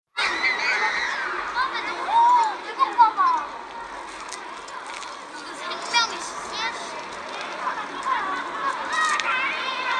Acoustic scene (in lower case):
park